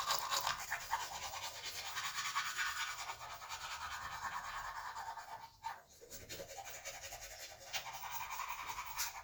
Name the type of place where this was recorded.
restroom